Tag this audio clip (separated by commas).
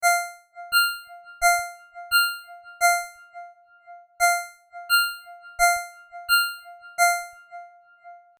Alarm, Telephone, Ringtone